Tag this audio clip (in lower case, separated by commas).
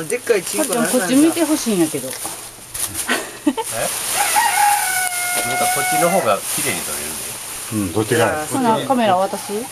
livestock, animal, speech